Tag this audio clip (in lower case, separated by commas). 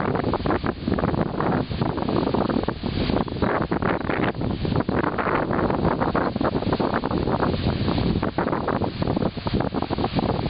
wind noise (microphone), wind